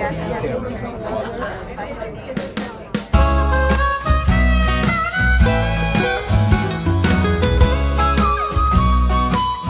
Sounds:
Music, Speech

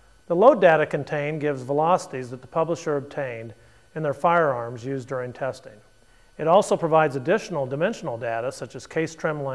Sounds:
Speech

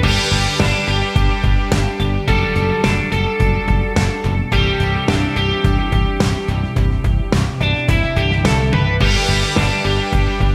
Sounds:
Music

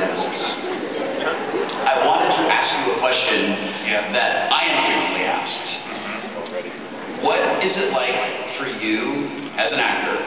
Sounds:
Speech

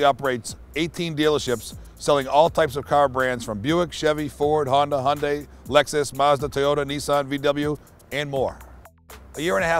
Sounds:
Music, Speech

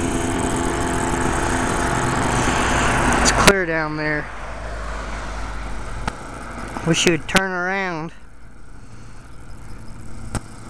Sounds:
Speech

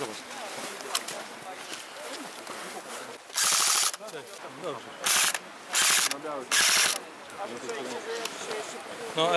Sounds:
Speech

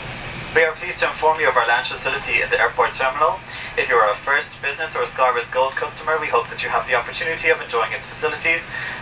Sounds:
Speech

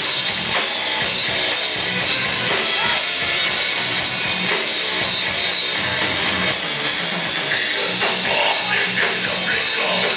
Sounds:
Heavy metal, Music, Rock music

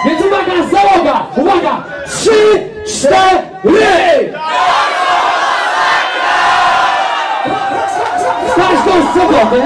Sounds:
Speech

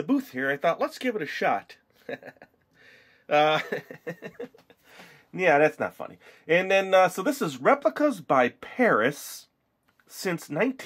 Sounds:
Speech

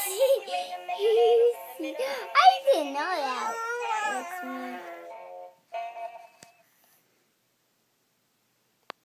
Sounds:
Music, Speech, Synthetic singing

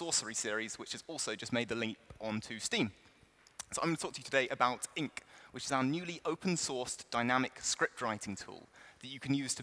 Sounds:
Speech

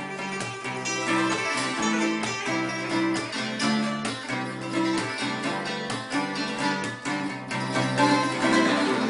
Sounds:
Music

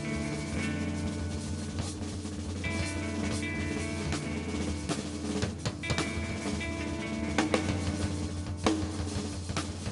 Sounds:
Christmas music, Music

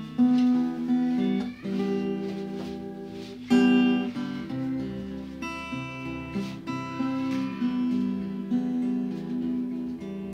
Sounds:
Musical instrument, Guitar, Strum, Acoustic guitar, Plucked string instrument, Music

